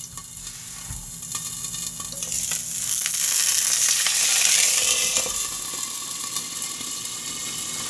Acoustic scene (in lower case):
kitchen